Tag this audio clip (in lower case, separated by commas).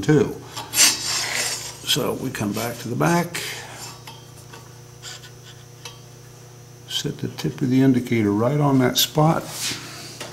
speech, tools